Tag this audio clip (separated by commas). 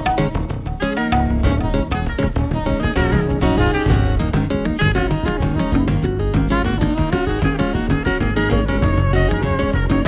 Guitar, Musical instrument, Music, Drum kit, Drum